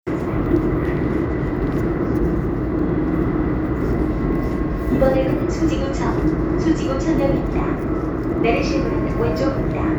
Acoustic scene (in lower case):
subway train